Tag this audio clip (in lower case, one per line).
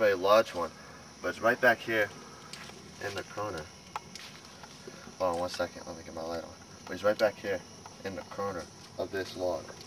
outside, rural or natural
speech